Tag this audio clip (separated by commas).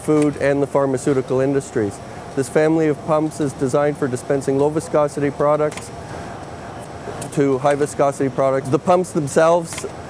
Speech